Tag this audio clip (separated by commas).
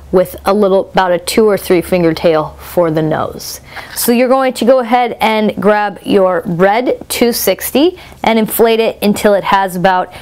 Speech